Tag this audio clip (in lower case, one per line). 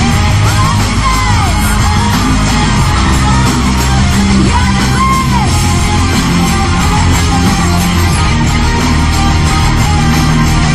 speech
inside a public space
music